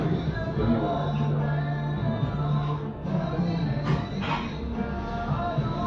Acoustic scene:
cafe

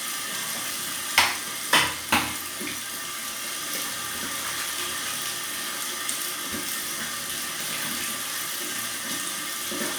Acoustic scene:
restroom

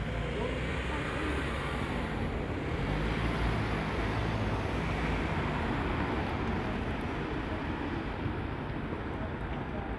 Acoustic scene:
street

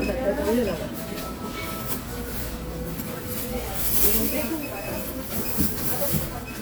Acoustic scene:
crowded indoor space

